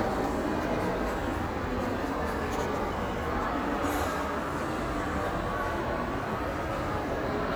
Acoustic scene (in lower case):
crowded indoor space